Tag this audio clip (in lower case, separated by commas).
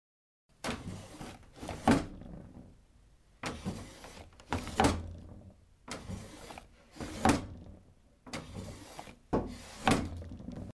drawer open or close, home sounds